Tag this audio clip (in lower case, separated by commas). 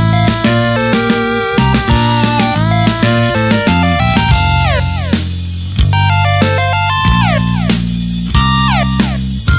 music, theme music